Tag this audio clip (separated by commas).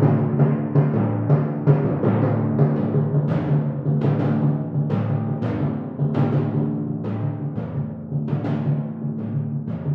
playing timpani